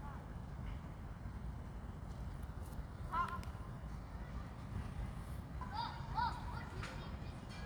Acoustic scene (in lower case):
park